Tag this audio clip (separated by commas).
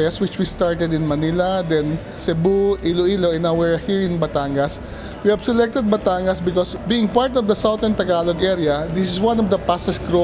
Car, Speech, Vehicle, Music